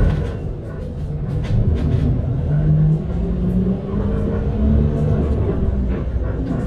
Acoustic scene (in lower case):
bus